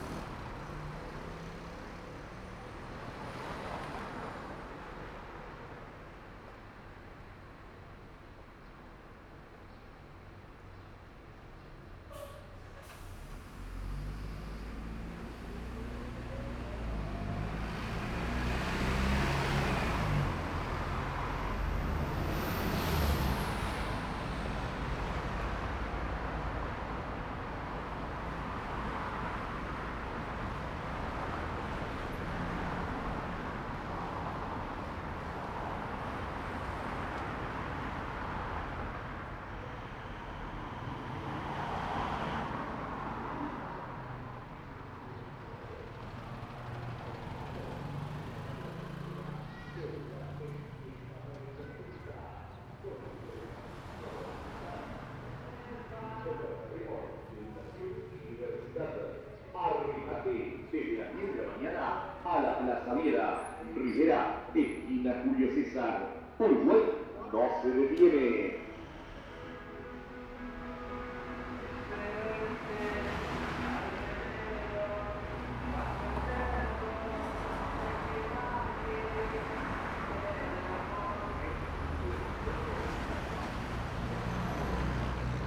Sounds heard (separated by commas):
bus engine idling, car, bus engine accelerating, motorcycle, car engine accelerating, people talking, bus, motorcycle engine accelerating, car wheels rolling, unclassified sound, bus compressor